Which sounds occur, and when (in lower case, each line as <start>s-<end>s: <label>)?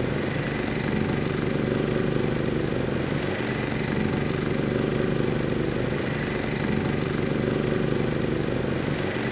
0.0s-9.3s: lawn mower